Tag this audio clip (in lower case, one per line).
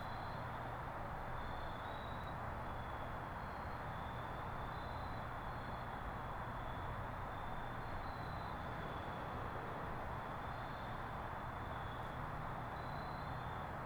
cricket
wild animals
insect
animal